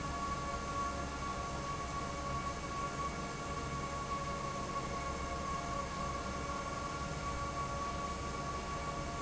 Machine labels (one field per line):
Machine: fan